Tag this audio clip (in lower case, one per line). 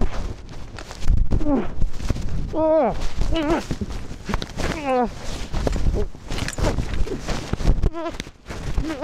skiing